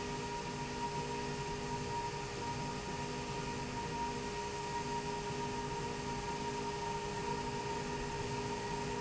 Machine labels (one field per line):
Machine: slide rail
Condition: normal